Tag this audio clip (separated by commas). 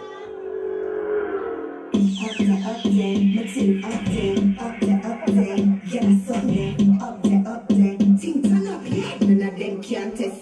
Music, Sound effect